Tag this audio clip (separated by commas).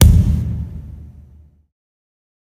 thud